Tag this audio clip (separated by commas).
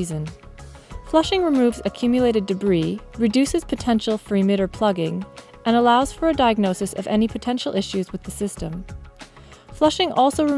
Speech